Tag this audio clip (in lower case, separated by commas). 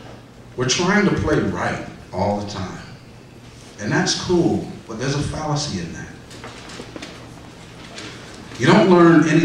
speech